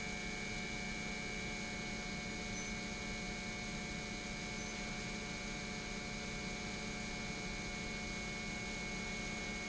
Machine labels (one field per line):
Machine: pump